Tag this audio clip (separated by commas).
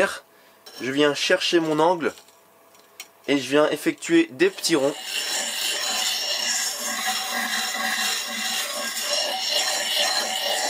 sharpen knife